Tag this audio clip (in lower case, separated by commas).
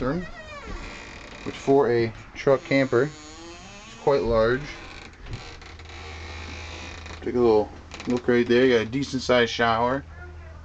speech